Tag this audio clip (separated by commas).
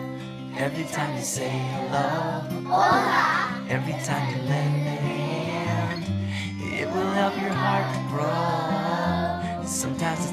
Music